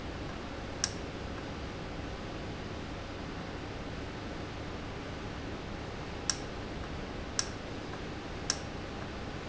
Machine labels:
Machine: valve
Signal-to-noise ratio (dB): -6 dB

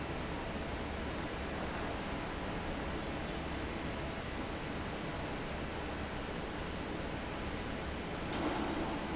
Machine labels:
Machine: fan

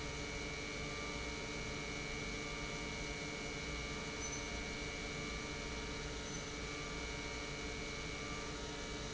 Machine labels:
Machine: pump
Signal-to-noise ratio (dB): 0 dB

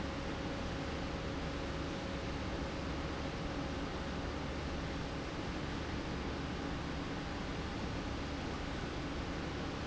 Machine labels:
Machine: pump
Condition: normal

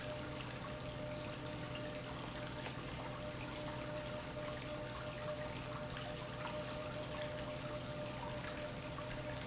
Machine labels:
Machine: pump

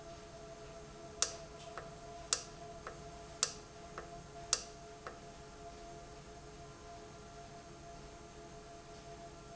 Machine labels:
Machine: valve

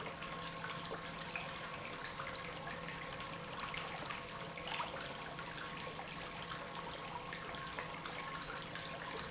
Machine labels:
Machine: pump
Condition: normal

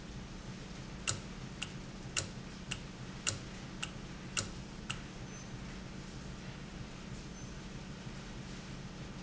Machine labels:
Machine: valve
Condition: normal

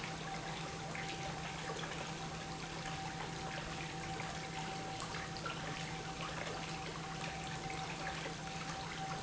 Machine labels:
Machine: pump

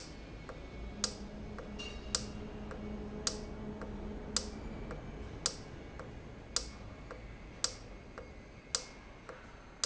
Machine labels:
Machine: valve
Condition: normal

